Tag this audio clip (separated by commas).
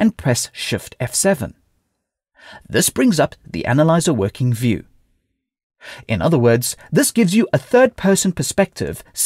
Speech